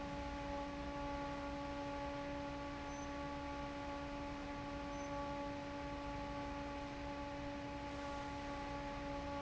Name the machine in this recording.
fan